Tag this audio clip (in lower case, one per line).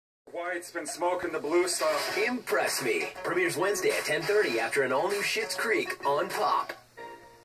speech
music
television